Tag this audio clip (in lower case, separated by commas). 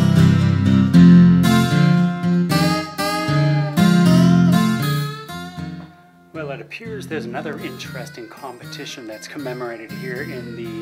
speech